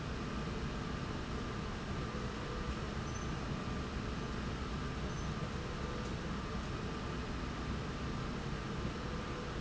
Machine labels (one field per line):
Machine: slide rail